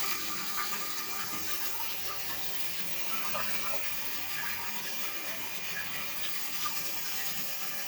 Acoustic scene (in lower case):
restroom